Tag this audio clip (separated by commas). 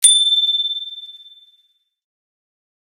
Bicycle bell, Bell, Alarm, Vehicle, Bicycle